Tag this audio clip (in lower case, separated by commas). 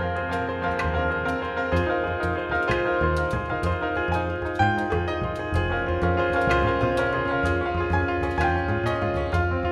music